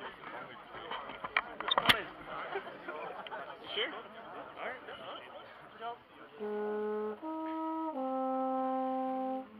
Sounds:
Music, Speech

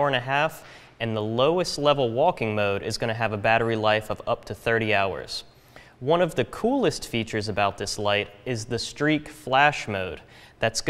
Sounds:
Speech

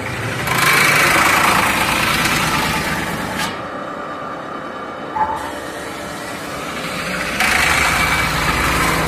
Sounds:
lathe spinning

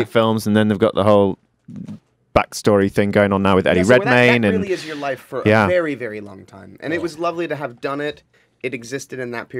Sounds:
Speech

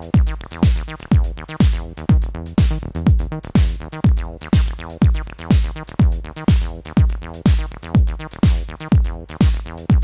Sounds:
Music, Drum machine

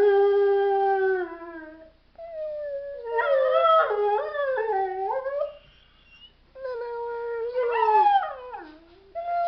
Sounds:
dog howling

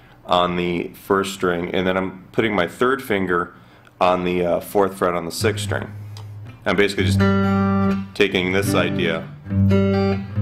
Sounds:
Guitar, Plucked string instrument, Musical instrument, Strum

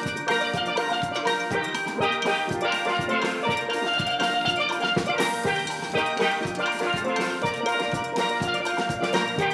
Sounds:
playing steelpan

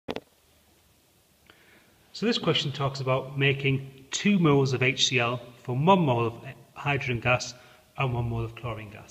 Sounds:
inside a small room, Speech

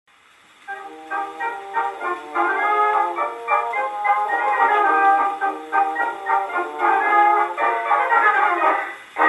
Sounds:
Music

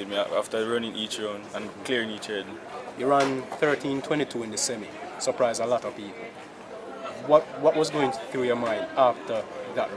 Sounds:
outside, urban or man-made, Speech, man speaking

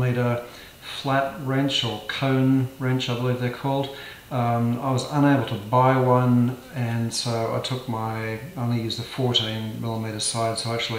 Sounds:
Speech

